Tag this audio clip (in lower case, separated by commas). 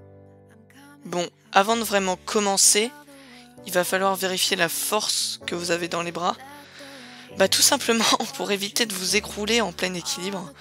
speech, music